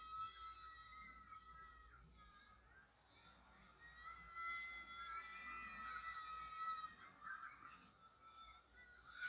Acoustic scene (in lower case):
residential area